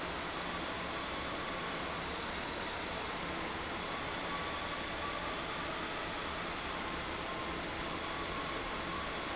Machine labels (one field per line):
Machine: fan